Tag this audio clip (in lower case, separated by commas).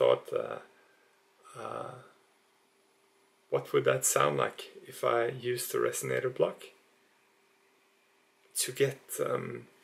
speech